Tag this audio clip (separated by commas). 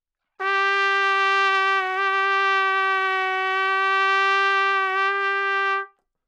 Musical instrument, Music, Trumpet, Brass instrument